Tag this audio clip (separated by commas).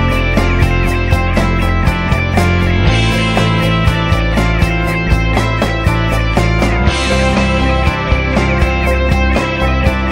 Music